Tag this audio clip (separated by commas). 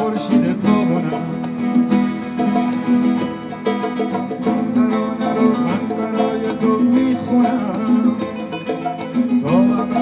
Music, Singing, String section